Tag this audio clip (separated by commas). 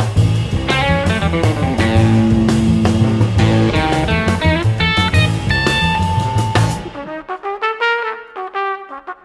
Jazz, Music